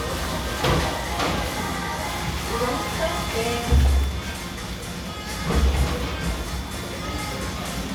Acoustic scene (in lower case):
cafe